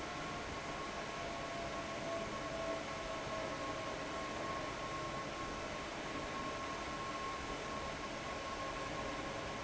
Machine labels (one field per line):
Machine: fan